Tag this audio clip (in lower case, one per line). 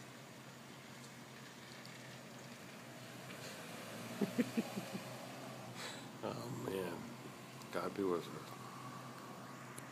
speech
car passing by